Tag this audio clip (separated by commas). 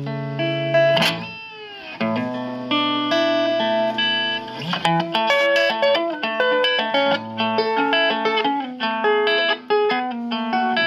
Plucked string instrument, Guitar, Music, Tapping (guitar technique), Musical instrument